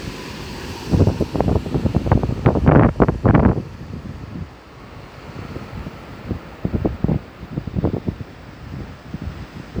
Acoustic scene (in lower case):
street